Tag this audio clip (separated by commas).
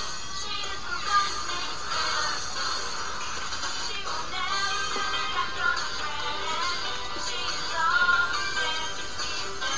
Music, Female singing